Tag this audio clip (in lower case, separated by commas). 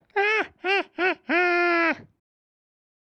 laughter, human voice